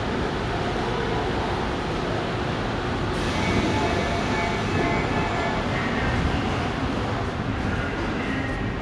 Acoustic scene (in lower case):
subway station